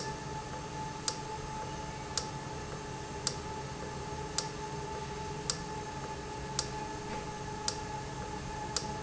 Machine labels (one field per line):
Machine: valve